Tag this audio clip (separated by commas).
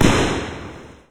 Explosion, Boom